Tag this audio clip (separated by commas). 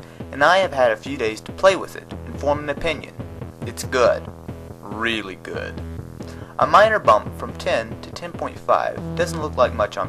Music, Speech